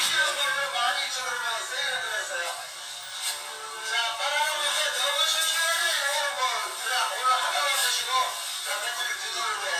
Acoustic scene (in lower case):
crowded indoor space